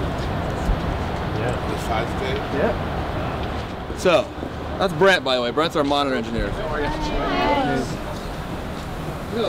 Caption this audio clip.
Male speaking in front of a group of people